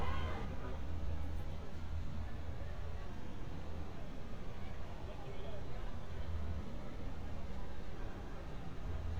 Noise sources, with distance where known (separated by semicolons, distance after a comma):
car horn